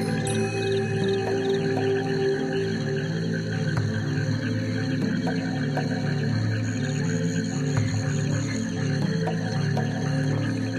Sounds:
Music

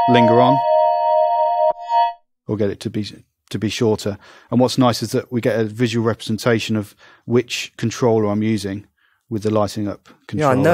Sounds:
Music, Speech, Musical instrument, Keyboard (musical), Synthesizer

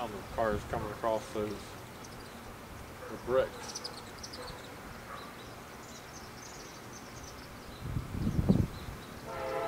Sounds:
train wagon, outside, rural or natural, Train, Vehicle, Speech

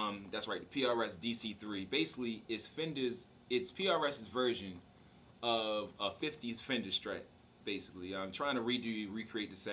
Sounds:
Speech

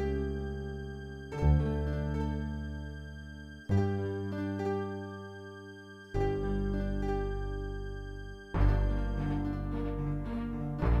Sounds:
Music

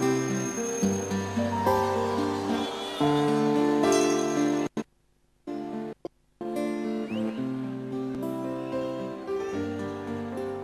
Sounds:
Music

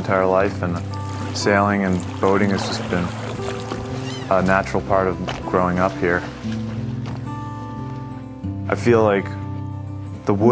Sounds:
Water vehicle, Speech, Music, Vehicle, Rowboat

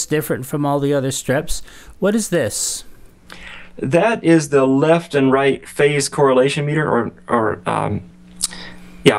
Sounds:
Vehicle, Speech

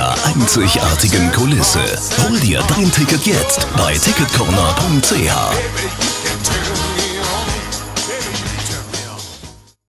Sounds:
Speech, Music

